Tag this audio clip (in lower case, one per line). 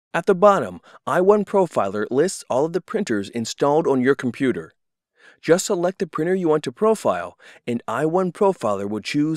speech